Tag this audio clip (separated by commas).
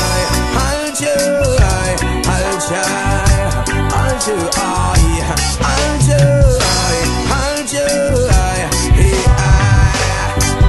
Reggae, Music